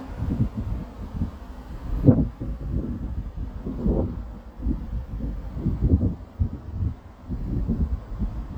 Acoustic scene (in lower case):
residential area